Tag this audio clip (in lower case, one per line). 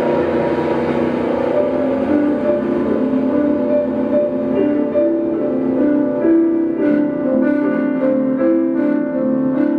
television